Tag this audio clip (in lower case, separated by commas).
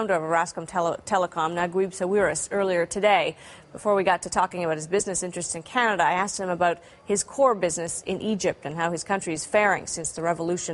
speech